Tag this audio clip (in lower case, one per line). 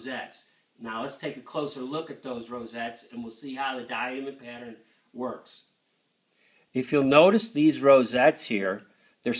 speech